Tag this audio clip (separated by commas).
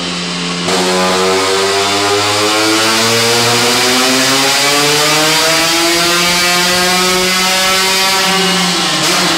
Heavy engine (low frequency)